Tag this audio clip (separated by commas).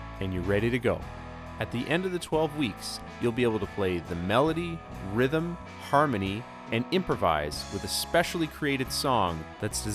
Musical instrument, Speech, Music